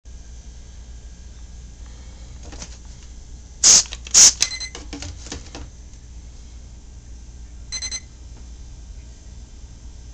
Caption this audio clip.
Silence at first followed by two short spraying noises followed by a few digital beeps